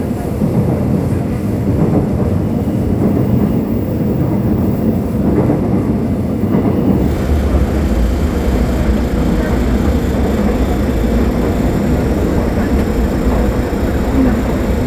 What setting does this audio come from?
subway train